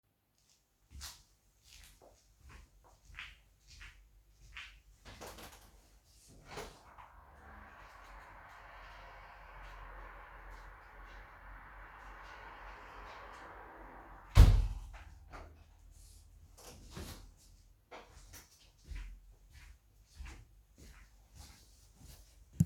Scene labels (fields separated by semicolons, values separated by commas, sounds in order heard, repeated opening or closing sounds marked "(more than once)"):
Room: living room; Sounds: footsteps, window (more than once)